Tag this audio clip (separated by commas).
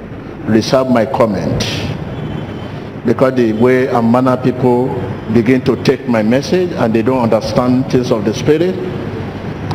Speech